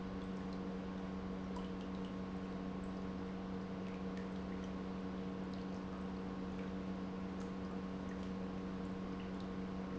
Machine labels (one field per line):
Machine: pump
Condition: normal